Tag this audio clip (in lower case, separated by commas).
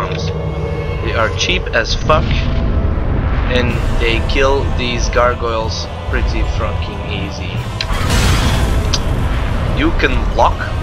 music, speech